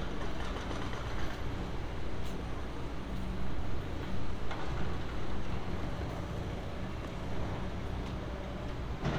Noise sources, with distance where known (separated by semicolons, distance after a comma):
engine of unclear size, near